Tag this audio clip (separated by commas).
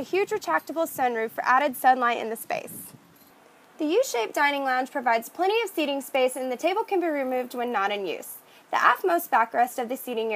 Speech